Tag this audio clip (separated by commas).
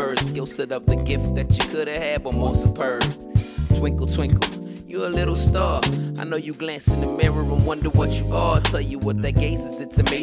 Lullaby, Music